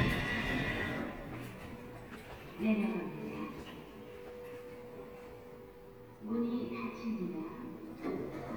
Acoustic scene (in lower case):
elevator